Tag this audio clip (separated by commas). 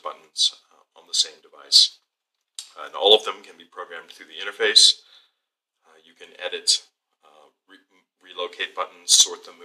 Male speech, Speech, monologue